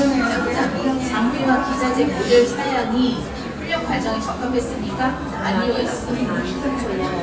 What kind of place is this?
cafe